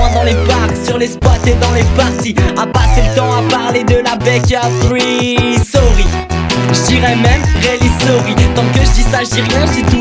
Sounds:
Music

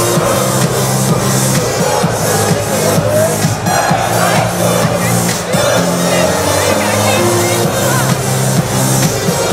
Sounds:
Music, Techno

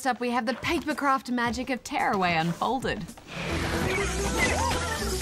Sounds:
Music, Speech

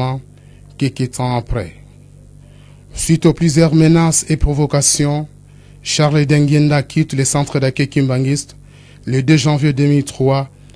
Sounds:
Speech

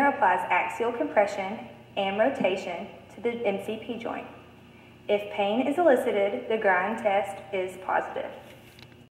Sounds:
Speech

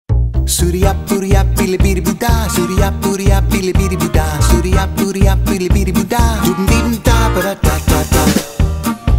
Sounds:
Music

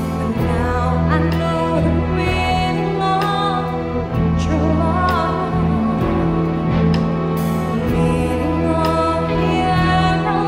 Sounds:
Music, Orchestra

